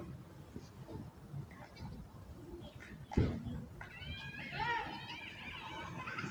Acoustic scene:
residential area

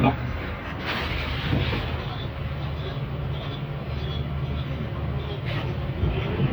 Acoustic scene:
bus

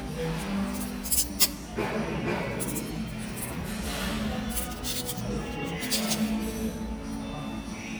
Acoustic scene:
cafe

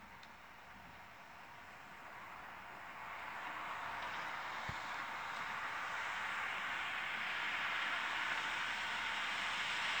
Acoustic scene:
street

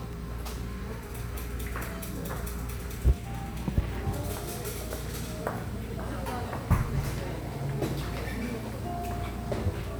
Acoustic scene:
cafe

